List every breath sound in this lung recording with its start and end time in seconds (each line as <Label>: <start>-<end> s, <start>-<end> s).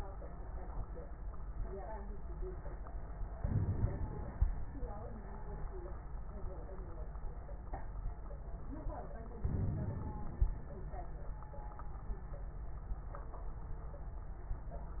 Inhalation: 3.40-4.46 s, 9.47-10.53 s
Crackles: 3.40-4.46 s, 9.47-10.53 s